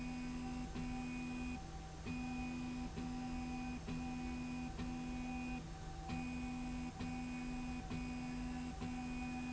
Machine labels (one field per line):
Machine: slide rail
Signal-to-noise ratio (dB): 6 dB